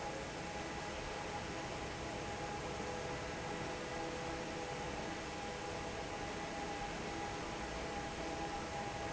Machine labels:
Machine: fan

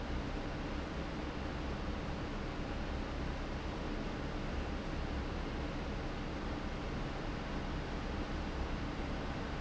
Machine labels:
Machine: fan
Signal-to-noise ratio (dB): -6 dB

